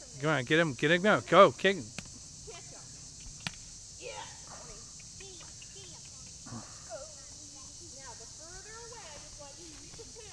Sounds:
speech

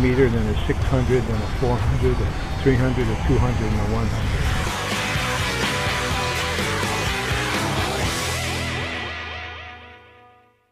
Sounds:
speech, music, male speech

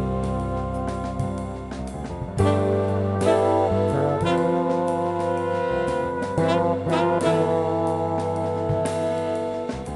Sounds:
music, jazz

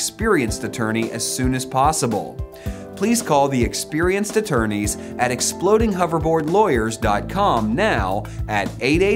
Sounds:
speech, music

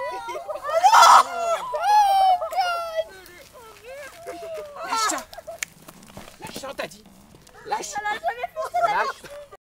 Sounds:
speech

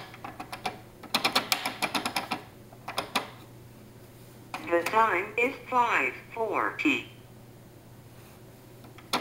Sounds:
speech

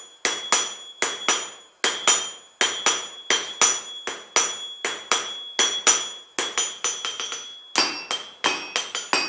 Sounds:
forging swords

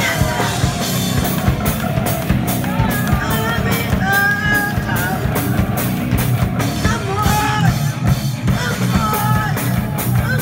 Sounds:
music, speech

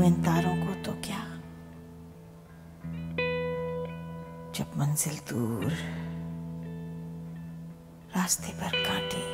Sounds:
speech, music

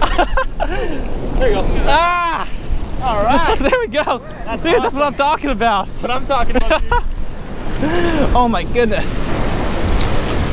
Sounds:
wind, surf, wind noise (microphone), ocean

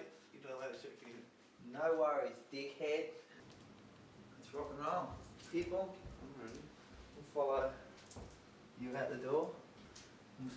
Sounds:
speech

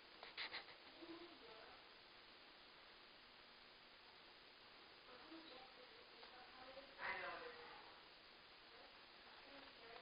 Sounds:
speech

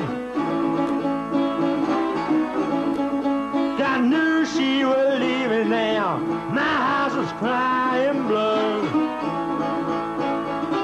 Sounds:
music

